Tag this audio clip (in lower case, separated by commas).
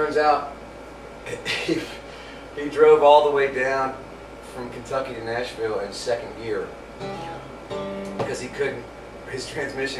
speech, music